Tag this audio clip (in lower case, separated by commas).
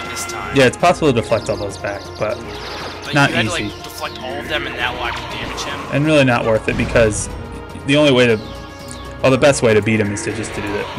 music, speech